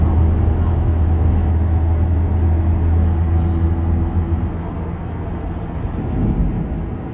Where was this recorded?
on a bus